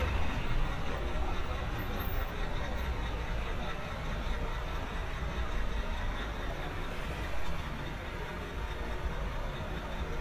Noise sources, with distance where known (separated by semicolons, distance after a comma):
large-sounding engine; person or small group talking